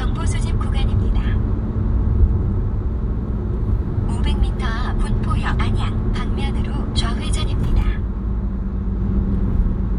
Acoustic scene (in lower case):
car